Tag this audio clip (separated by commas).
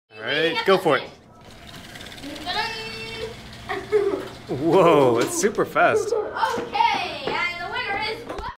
Speech